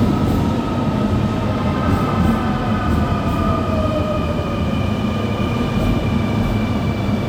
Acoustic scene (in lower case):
subway station